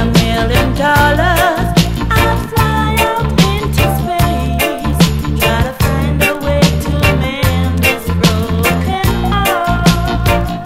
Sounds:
music

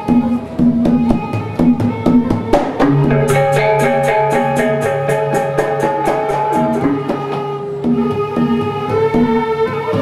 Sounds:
steelpan, music

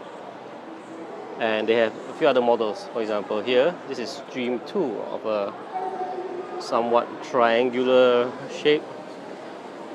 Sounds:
speech

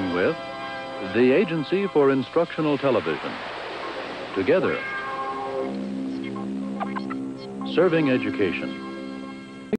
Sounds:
music, speech

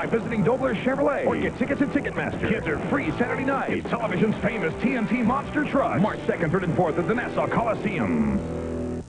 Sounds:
music, speech

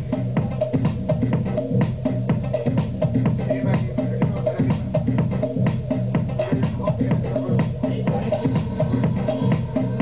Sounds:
electronica, music

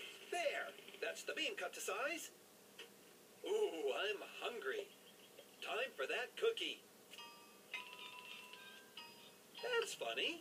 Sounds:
music, inside a small room, speech

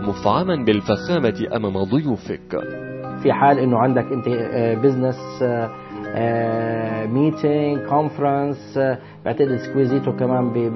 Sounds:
music, speech

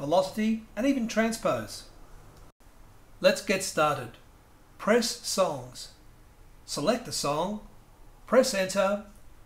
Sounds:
speech

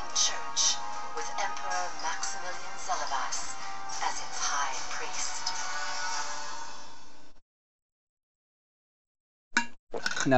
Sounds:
music, speech

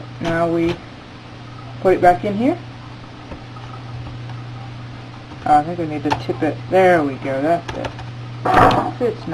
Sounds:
inside a small room, computer keyboard, speech

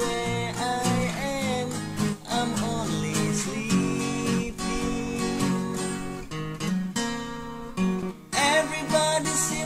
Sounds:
music, musical instrument, plucked string instrument, guitar, acoustic guitar

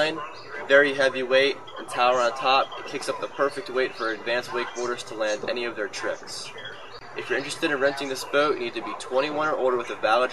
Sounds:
speech

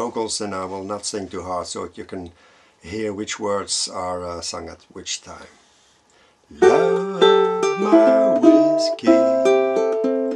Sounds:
speech, musical instrument, music, plucked string instrument, ukulele, inside a small room

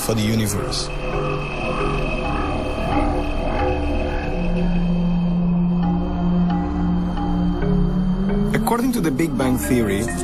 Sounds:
speech, music

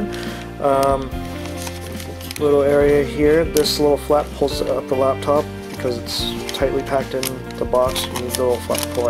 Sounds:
speech, music

